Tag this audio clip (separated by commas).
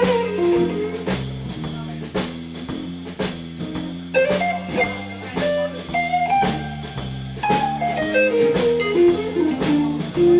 Music, Blues